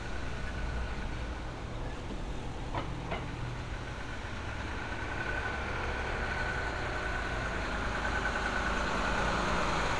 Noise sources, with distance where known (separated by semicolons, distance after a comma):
medium-sounding engine, near